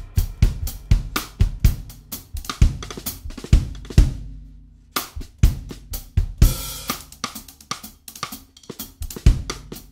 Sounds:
playing drum kit
snare drum
musical instrument
cymbal
percussion
hi-hat
music
drum
drum kit

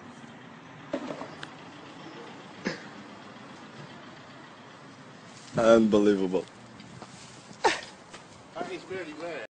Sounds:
speech

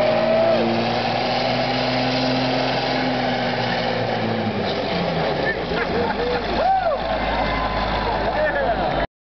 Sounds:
vehicle
truck
speech

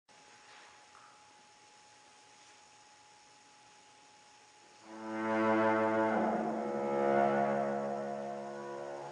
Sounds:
double bass
cello
bowed string instrument

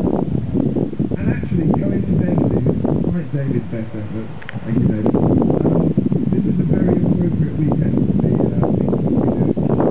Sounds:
speech

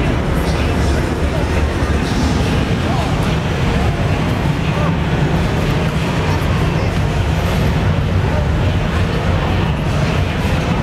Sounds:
speech

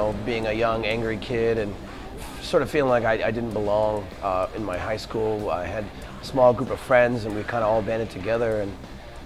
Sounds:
music
speech

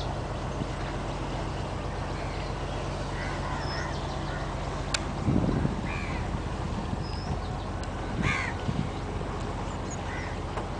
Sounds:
motorboat
vehicle

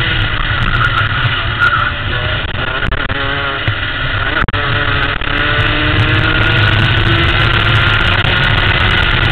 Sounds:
vehicle
auto racing
car

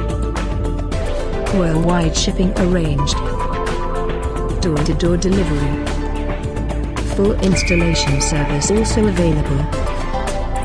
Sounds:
music
speech

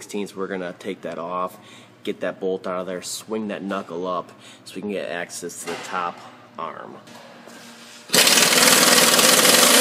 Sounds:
speech

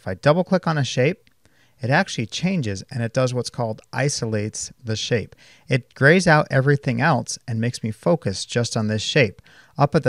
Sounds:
speech

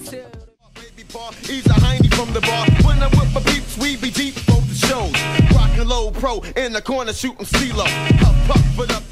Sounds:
music
sampler

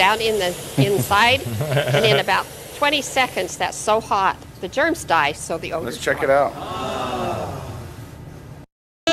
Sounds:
steam
hiss

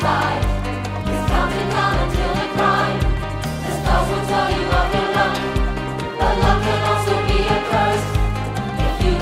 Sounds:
music

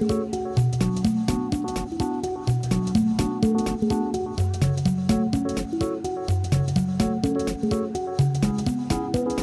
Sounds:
music

